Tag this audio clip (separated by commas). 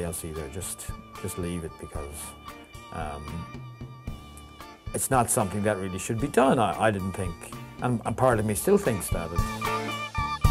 Music, Speech